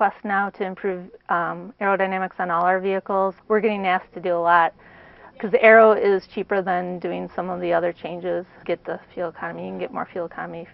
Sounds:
Speech

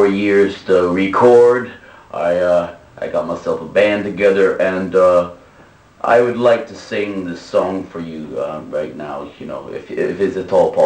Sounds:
Speech

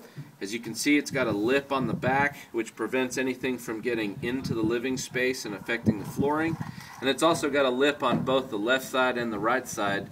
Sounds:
Speech

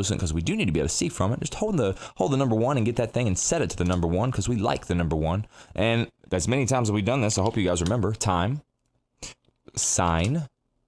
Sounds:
Speech

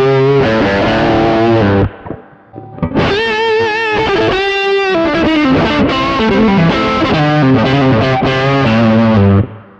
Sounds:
Effects unit, Musical instrument, Guitar, Distortion, Music, inside a small room, Plucked string instrument

